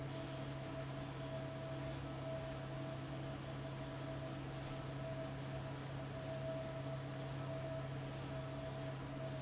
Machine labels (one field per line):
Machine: fan